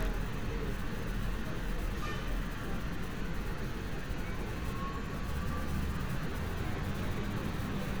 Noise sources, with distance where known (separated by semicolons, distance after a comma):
large-sounding engine; car horn